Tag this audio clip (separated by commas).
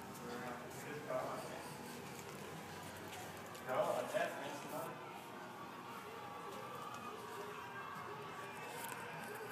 Speech